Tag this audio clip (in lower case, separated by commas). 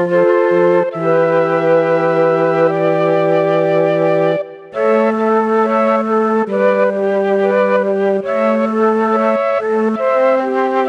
music